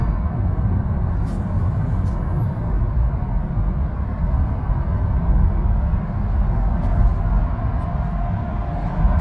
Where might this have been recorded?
in a car